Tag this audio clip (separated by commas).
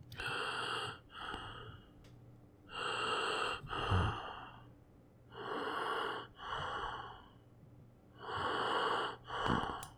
Respiratory sounds, Breathing